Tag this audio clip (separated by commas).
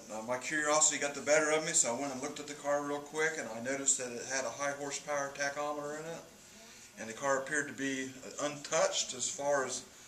Speech, inside a small room